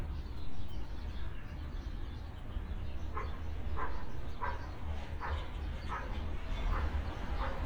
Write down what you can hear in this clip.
dog barking or whining